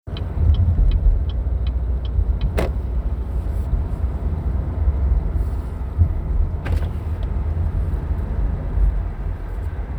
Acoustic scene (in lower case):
car